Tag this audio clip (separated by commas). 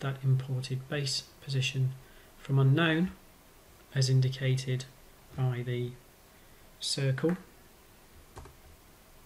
Computer keyboard, Speech